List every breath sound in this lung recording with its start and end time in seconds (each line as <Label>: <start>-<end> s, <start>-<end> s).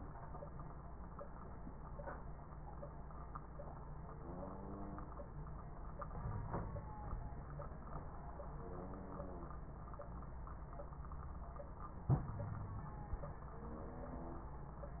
Wheeze: 6.18-6.91 s, 8.50-9.58 s, 12.34-12.87 s